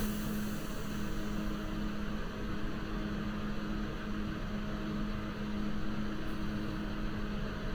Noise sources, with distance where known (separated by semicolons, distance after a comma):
engine of unclear size, far